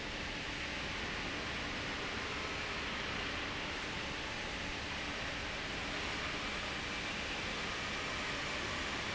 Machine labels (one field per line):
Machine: fan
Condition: abnormal